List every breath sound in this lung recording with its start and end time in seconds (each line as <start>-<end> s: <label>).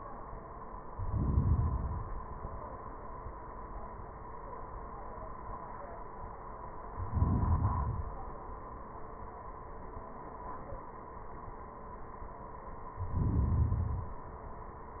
0.86-1.43 s: inhalation
1.46-2.45 s: exhalation
6.98-7.65 s: inhalation
7.63-8.30 s: exhalation
12.92-13.70 s: inhalation
13.69-14.50 s: exhalation